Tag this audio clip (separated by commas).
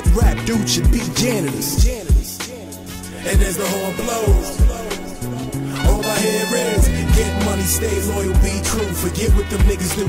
Hip hop music, Rapping, Music